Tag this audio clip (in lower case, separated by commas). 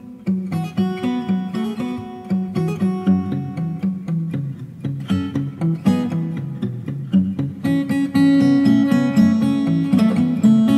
music, guitar, acoustic guitar, musical instrument